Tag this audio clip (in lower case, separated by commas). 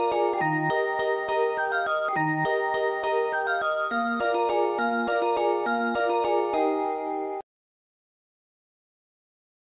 music